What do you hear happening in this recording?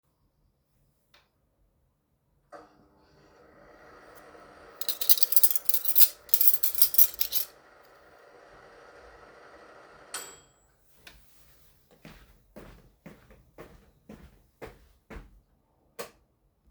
I start the microwave while placing some cutlery in place then after the microwave ends I walk to the side of the room an switch the lights off.